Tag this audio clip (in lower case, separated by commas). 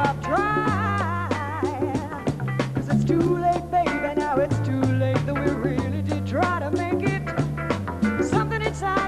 blues, music